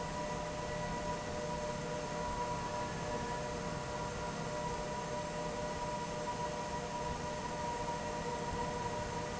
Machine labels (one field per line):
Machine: fan